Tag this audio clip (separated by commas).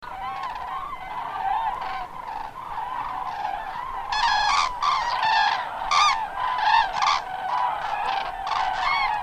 Animal, Wild animals, Bird